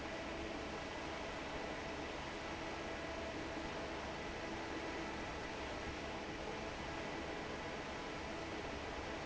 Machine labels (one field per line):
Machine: fan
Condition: normal